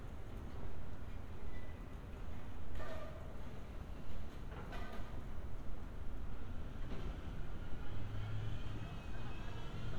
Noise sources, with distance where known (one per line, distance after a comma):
background noise